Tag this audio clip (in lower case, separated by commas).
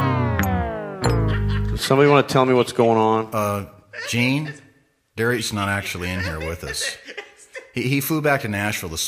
speech